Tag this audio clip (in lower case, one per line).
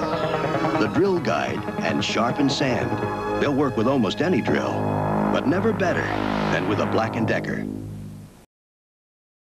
music
speech